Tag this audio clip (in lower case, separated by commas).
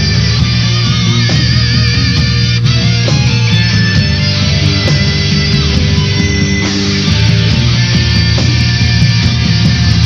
inside a large room or hall, music